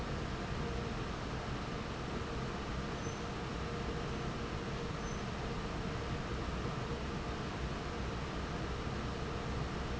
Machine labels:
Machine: fan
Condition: normal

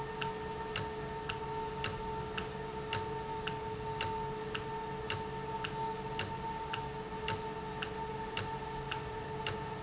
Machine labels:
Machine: valve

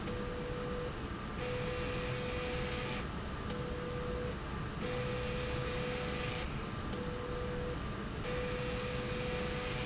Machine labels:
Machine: slide rail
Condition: abnormal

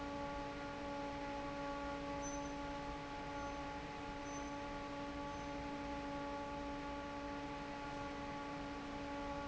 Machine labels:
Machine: fan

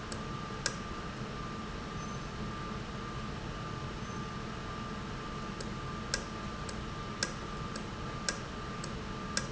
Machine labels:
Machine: valve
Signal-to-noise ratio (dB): -6 dB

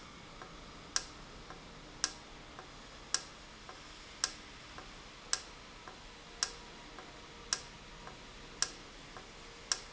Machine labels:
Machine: valve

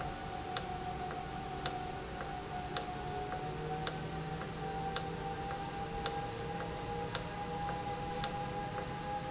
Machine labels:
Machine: valve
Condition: normal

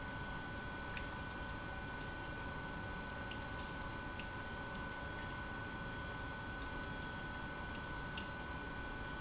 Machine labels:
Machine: pump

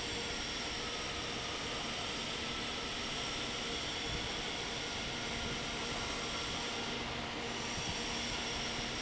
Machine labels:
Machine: fan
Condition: normal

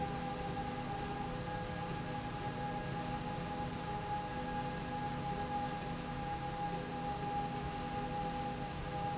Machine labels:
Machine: slide rail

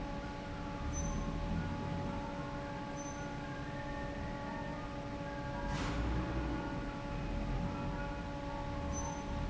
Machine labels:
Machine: fan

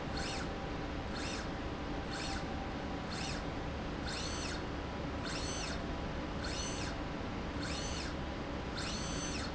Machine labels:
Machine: slide rail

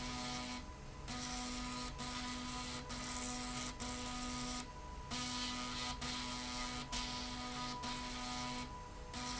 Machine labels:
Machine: slide rail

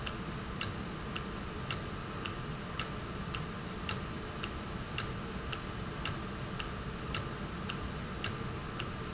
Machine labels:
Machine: valve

